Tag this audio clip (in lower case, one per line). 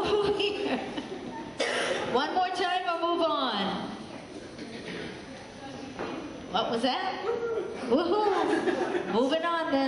speech